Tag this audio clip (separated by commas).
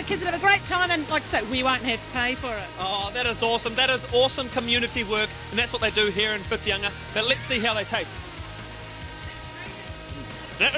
Speech